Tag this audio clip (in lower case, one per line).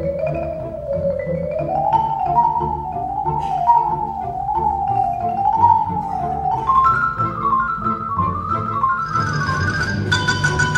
vibraphone
music